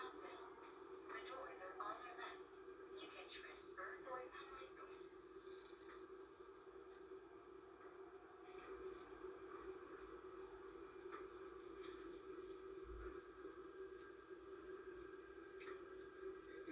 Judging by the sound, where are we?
on a subway train